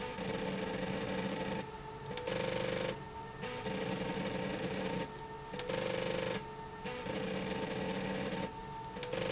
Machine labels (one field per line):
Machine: slide rail